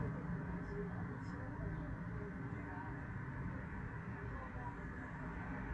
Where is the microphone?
on a street